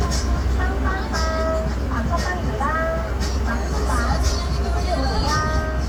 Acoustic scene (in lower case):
street